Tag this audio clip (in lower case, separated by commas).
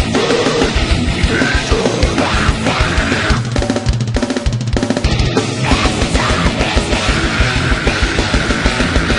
rock music, music, heavy metal, angry music